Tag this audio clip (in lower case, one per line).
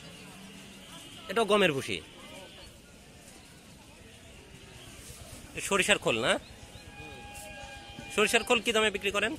cattle mooing